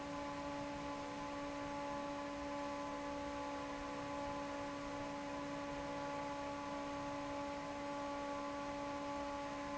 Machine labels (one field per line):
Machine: fan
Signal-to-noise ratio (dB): 6 dB